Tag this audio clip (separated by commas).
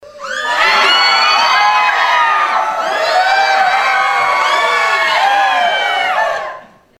Human group actions, Crowd